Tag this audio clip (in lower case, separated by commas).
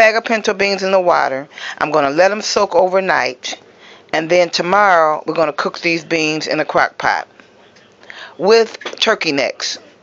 speech